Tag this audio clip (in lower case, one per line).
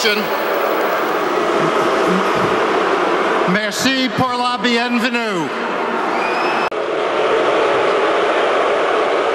people booing